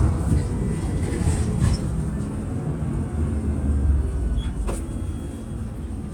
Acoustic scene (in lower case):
bus